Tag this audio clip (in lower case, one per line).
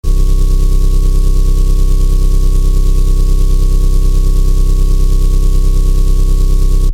engine